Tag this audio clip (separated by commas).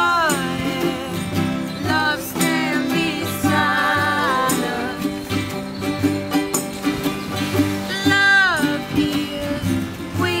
Music